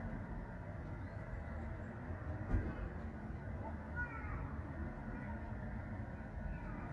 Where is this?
in a residential area